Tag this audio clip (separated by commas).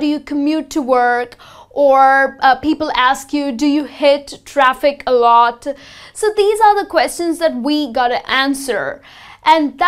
Speech